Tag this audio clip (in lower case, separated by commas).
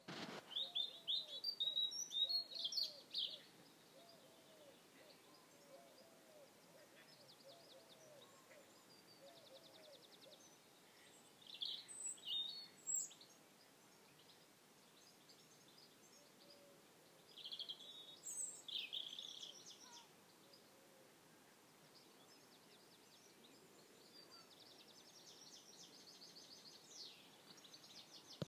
animal, wild animals, bird, bird vocalization